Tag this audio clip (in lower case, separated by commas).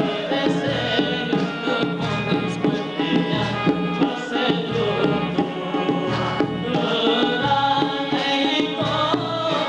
traditional music, music